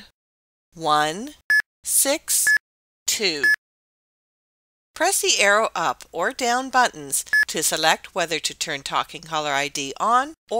A woman speaks with several beeps